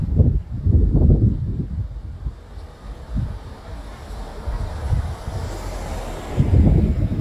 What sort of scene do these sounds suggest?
residential area